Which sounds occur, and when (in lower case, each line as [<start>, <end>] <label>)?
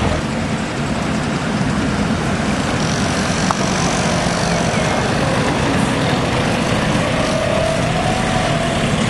[0.00, 9.05] mechanisms